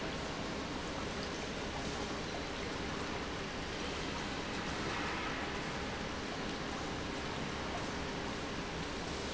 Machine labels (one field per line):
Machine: pump